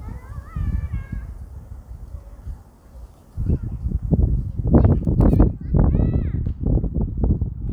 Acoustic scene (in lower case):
park